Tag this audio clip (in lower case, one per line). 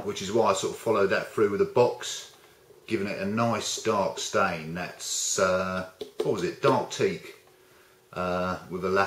speech